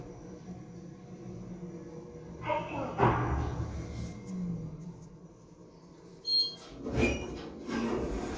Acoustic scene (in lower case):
elevator